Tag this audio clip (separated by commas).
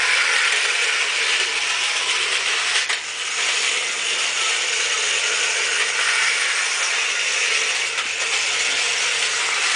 Rustling leaves